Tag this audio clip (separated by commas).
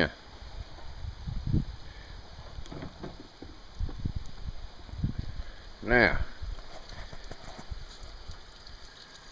Speech